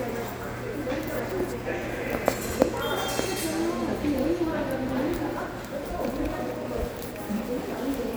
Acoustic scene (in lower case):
subway station